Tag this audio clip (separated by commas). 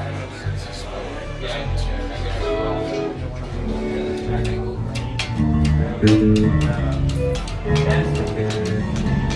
Plucked string instrument, Strum, Electric guitar, Speech, Guitar, Music, Musical instrument